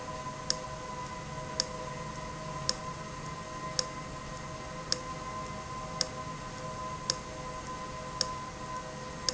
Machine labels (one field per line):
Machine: valve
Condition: abnormal